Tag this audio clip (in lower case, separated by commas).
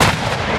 explosion